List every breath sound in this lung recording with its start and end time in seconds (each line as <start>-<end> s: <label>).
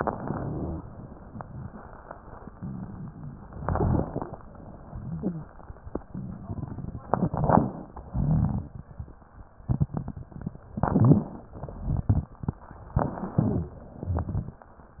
0.00-0.84 s: inhalation
0.00-0.84 s: crackles
3.58-4.33 s: inhalation
3.58-4.33 s: crackles
7.06-7.80 s: inhalation
7.06-7.80 s: crackles
8.04-8.79 s: crackles
8.08-8.82 s: exhalation
10.76-11.50 s: crackles
10.78-11.52 s: inhalation
11.59-12.31 s: exhalation
11.59-12.31 s: crackles
12.98-13.72 s: crackles
13.02-13.76 s: inhalation
14.02-14.67 s: exhalation
14.02-14.67 s: crackles